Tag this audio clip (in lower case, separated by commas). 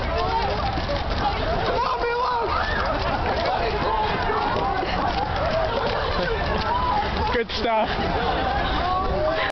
run, speech